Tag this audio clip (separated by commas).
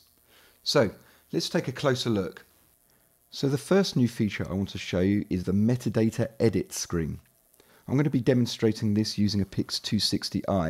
Speech